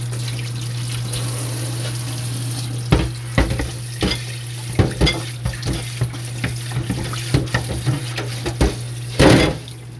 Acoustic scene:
kitchen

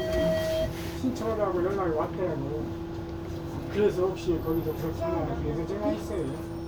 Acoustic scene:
bus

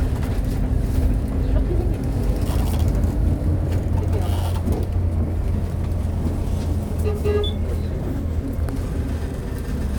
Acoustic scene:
bus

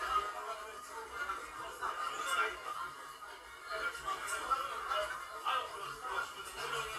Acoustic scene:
crowded indoor space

